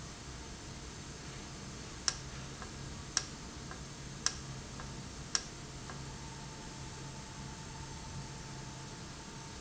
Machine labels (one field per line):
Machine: valve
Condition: normal